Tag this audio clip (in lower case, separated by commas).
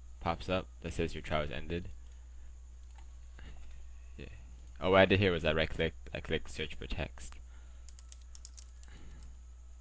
speech, computer keyboard, typing